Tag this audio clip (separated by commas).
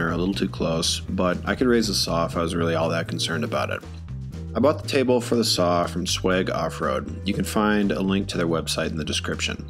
Speech, Music